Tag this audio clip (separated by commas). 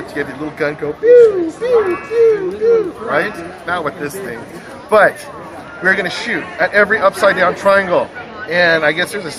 Speech, inside a public space